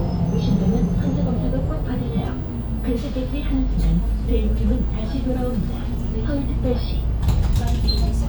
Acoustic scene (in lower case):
bus